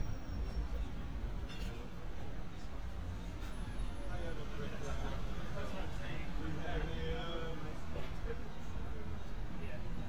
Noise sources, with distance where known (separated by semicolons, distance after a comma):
person or small group talking, near